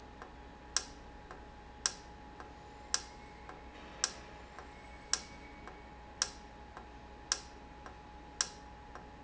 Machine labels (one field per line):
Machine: valve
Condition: normal